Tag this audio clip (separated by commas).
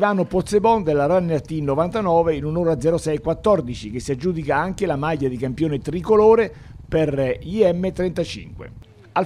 Speech